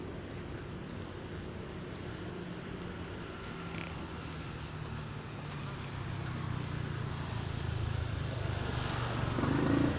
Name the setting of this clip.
street